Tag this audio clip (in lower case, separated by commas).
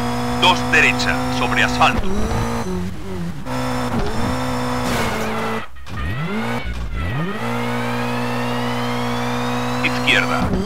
car, speech, skidding, vehicle